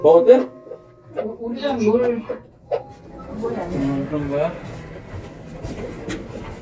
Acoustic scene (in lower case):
elevator